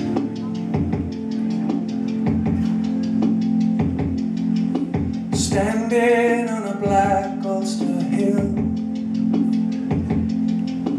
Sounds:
music

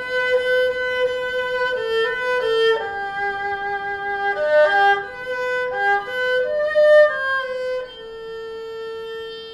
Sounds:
playing erhu

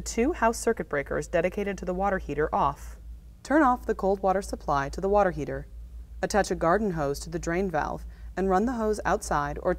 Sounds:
speech

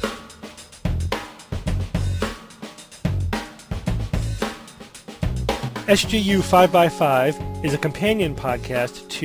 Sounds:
hi-hat
cymbal
snare drum

